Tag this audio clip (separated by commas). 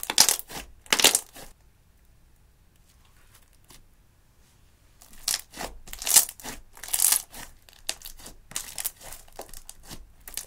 ice cracking